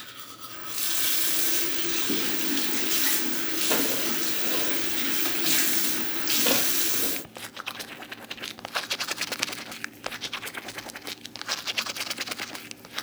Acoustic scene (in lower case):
restroom